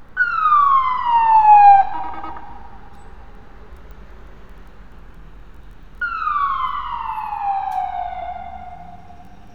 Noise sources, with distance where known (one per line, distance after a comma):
siren